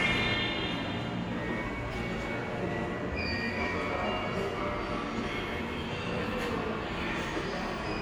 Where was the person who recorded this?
in a subway station